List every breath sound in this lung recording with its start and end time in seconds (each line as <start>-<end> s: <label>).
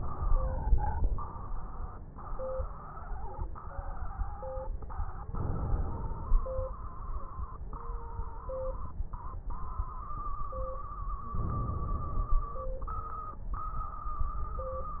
0.00-1.26 s: inhalation
0.00-1.26 s: crackles
5.23-6.42 s: inhalation
5.23-6.42 s: crackles
11.37-12.56 s: inhalation
11.37-12.56 s: crackles